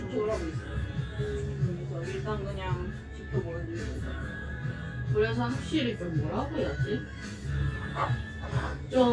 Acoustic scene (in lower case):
cafe